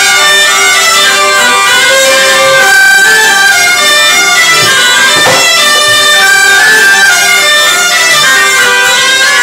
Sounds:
music, traditional music

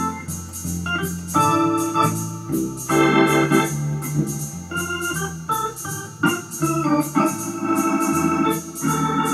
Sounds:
music

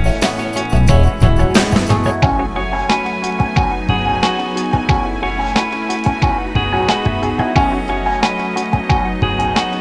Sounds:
music

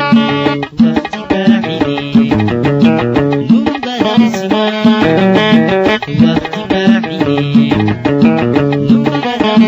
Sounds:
music

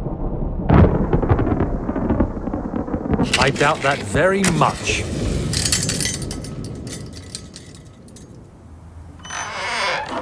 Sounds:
speech

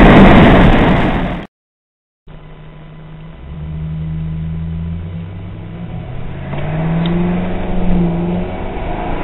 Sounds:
car, vehicle

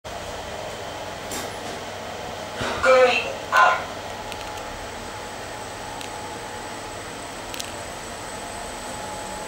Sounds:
inside a small room, speech

